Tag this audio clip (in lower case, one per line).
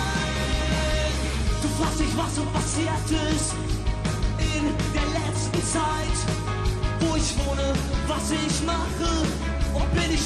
jazz
music